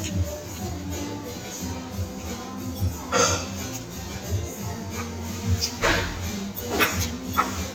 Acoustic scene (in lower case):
restaurant